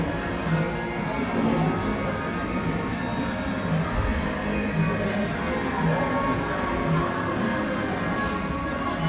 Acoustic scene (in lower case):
cafe